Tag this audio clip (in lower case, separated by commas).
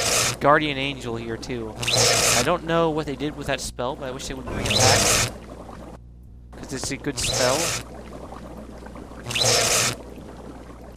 speech